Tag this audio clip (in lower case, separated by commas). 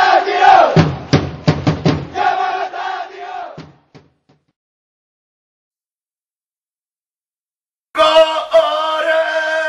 music, chant, vocal music